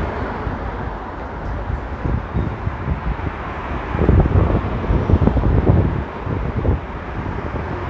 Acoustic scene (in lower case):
street